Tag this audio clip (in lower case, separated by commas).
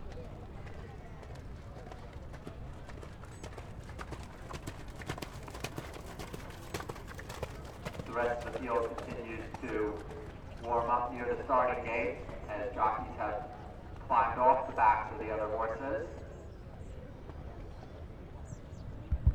animal, livestock